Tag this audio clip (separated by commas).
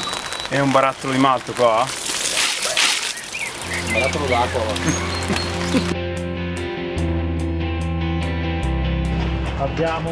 Speech, Music